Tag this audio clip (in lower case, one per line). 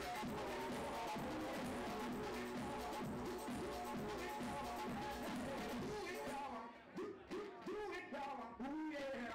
techno
music
electronic music